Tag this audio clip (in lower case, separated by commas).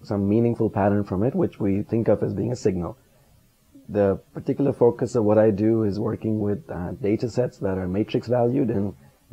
speech